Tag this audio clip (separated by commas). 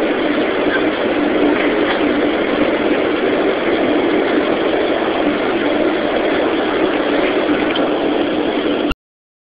Heavy engine (low frequency), Vehicle, Engine